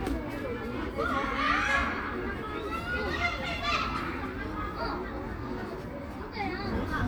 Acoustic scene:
park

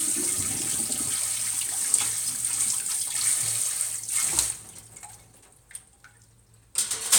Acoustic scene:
kitchen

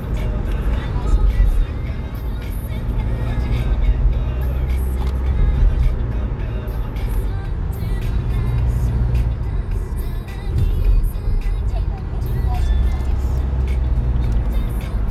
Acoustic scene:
car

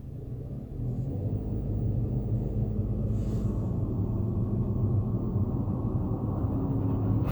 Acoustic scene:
car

